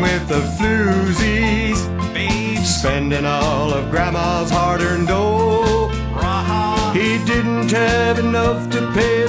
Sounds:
Music

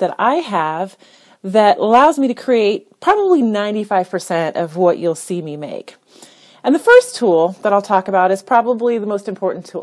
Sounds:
Speech

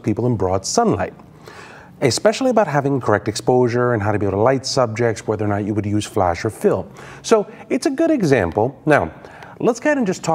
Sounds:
Speech

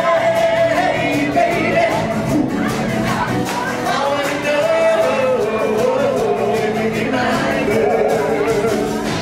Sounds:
Rock and roll, Music

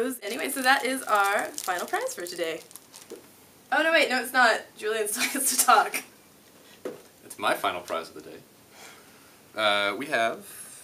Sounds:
inside a small room, Speech

